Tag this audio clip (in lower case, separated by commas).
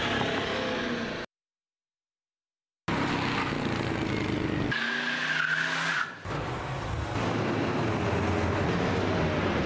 skidding, car, tire squeal, vehicle